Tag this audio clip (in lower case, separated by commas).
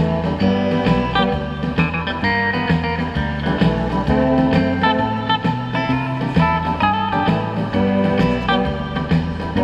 electric guitar, strum, musical instrument, plucked string instrument, guitar, music